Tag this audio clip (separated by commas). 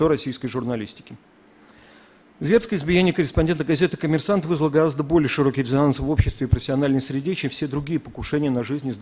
man speaking, Speech